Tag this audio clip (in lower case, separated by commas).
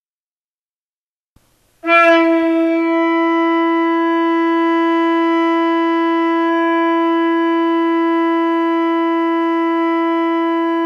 wind instrument, inside a small room, music